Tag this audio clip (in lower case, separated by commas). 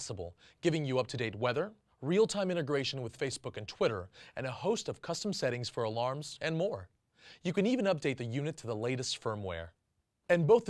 speech